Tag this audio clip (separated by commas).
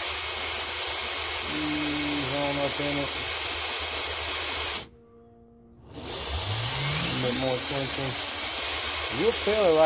Speech